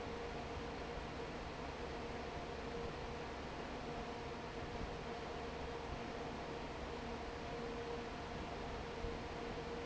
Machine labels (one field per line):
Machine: fan